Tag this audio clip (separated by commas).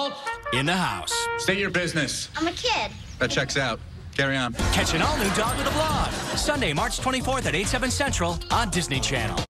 Speech, Music